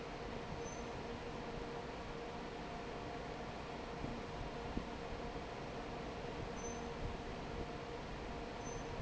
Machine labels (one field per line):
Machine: fan